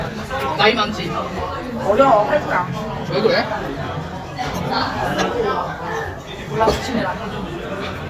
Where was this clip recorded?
in a crowded indoor space